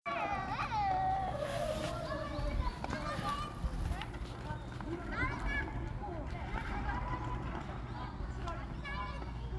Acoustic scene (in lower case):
park